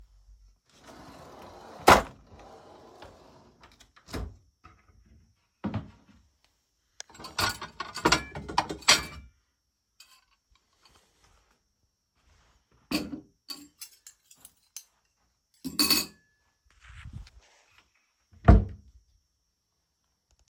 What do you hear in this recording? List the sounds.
wardrobe or drawer, cutlery and dishes